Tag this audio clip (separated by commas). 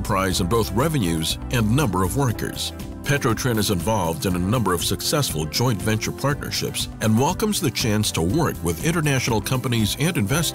Television, Music, Speech